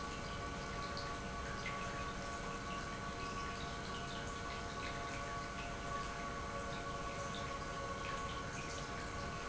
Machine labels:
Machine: pump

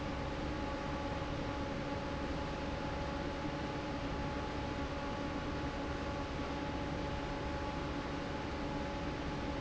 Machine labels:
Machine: fan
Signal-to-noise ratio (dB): -6 dB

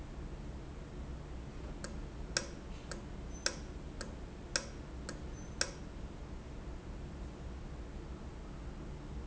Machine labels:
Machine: valve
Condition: normal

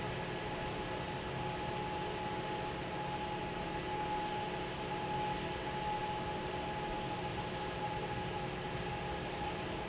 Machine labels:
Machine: fan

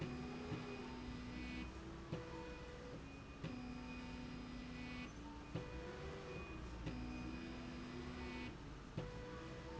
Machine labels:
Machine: slide rail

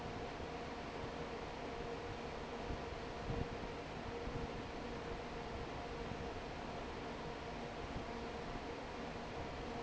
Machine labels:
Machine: fan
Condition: normal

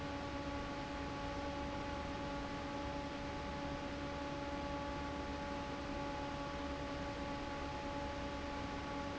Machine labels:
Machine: fan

